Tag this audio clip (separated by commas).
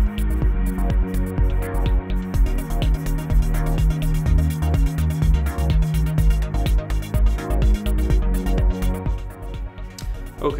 Music